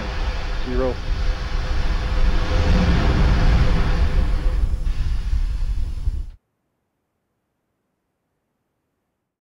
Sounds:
speech

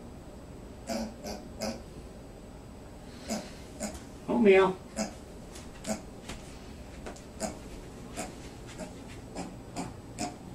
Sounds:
speech
oink

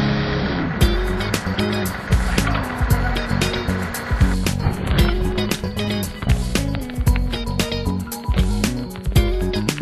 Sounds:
music

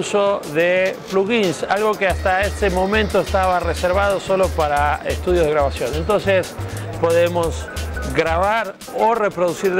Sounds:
speech
music

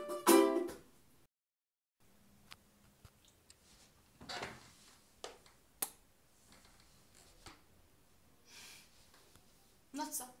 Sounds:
guitar
musical instrument
speech
ukulele
plucked string instrument
music

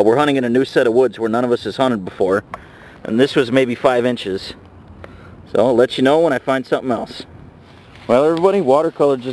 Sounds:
speech

